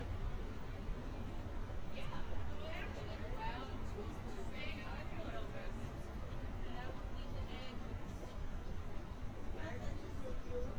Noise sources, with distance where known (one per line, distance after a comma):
person or small group talking